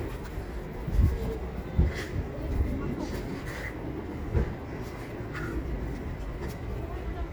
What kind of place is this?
residential area